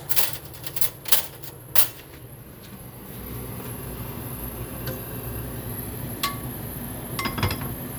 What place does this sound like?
kitchen